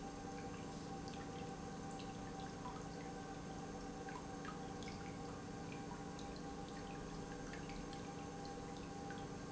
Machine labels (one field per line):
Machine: pump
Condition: normal